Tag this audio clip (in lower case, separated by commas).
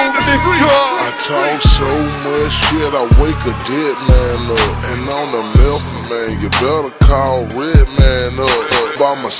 music, speech